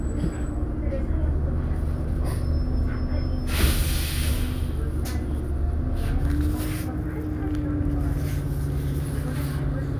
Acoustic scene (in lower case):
bus